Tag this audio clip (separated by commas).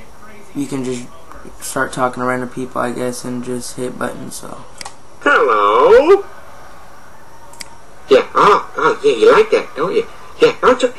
Speech